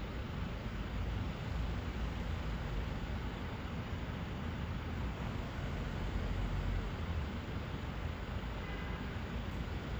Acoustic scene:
street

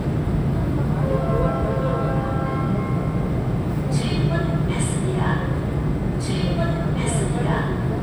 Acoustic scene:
subway train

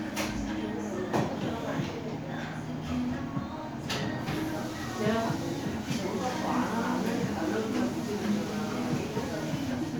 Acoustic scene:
crowded indoor space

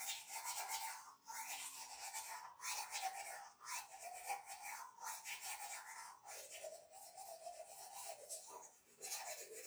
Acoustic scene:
restroom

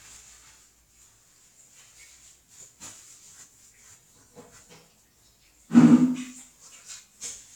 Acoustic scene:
restroom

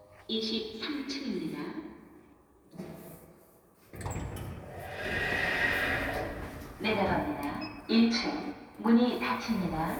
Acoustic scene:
elevator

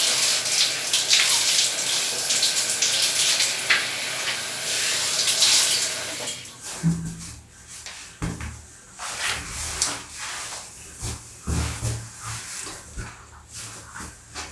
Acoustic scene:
restroom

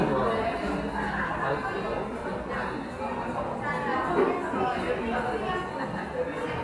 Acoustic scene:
cafe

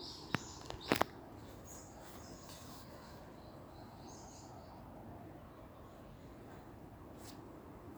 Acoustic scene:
park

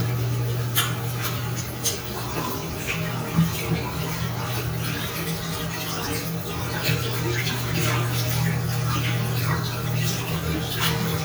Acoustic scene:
restroom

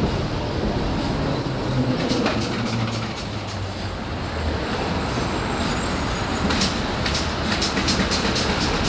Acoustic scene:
street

